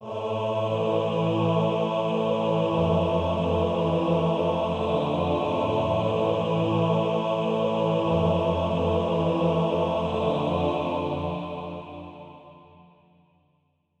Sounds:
Singing, Musical instrument, Music, Human voice

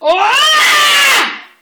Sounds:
Screaming, Human voice

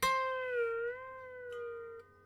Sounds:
Music, Harp, Musical instrument

